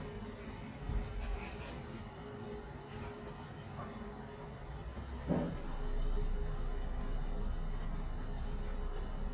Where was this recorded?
in an elevator